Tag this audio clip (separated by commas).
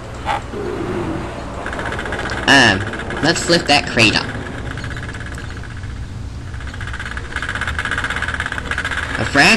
Speech, outside, urban or man-made